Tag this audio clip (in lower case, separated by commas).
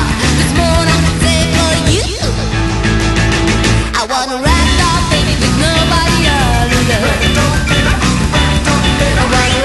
music